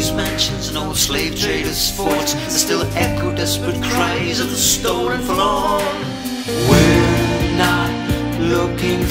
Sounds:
Music

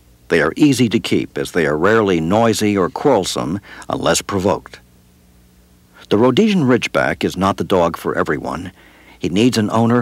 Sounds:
Speech

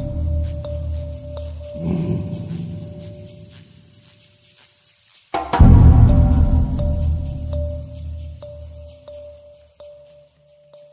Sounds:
Music

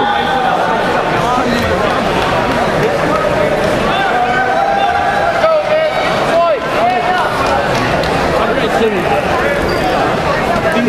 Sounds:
Speech

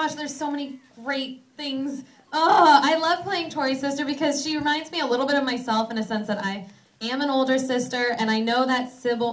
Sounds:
Speech

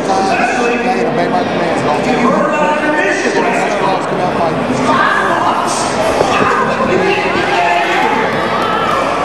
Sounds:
Cheering, Speech

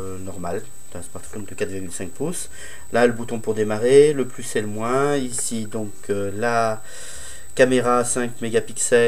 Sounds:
Speech

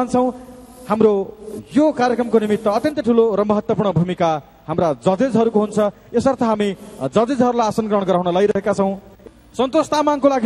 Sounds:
Speech

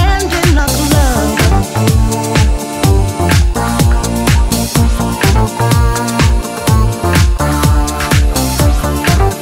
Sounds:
Music

